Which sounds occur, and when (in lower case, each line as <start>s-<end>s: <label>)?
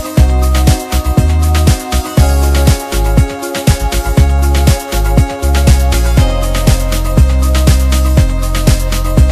0.0s-9.3s: music